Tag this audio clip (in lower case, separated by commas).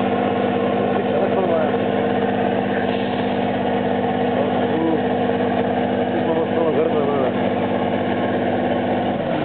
vehicle, speech, truck